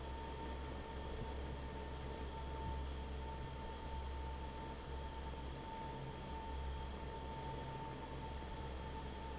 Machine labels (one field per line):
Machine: fan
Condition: normal